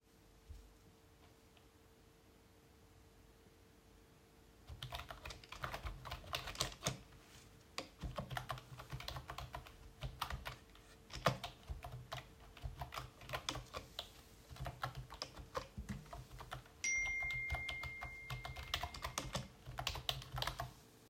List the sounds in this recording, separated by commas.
keyboard typing, phone ringing